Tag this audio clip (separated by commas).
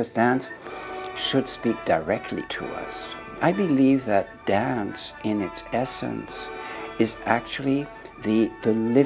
Music, Speech